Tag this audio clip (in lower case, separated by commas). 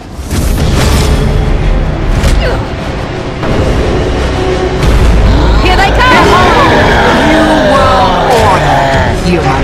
speech